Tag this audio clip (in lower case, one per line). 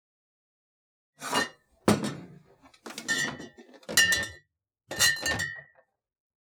chink
glass